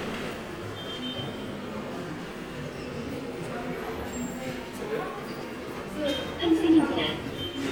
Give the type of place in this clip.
subway station